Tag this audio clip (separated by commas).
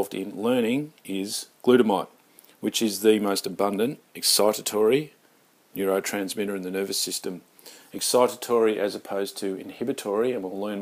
Speech